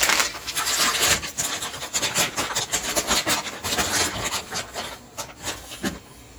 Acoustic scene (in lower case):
kitchen